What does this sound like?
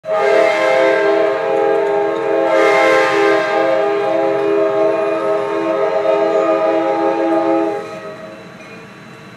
Train horn followed by the train bell